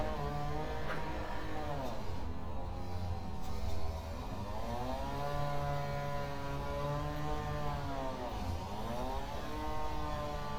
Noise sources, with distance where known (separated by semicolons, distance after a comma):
non-machinery impact; chainsaw